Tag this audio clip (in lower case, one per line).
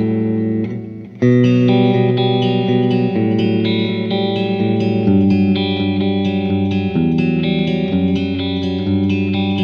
effects unit
musical instrument
plucked string instrument
music
electric guitar
guitar